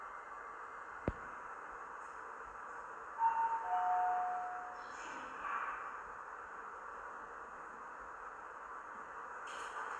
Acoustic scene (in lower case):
elevator